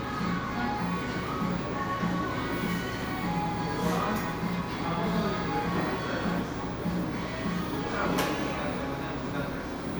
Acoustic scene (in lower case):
cafe